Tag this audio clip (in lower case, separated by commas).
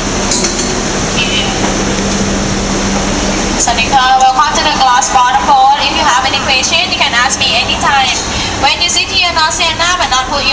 speech